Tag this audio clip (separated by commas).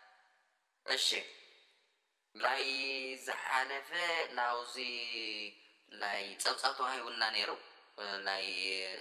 Speech